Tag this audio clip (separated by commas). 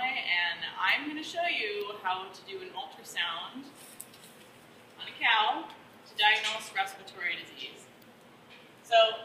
Speech